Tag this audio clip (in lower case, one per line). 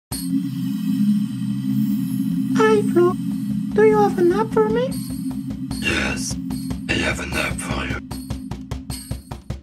music
speech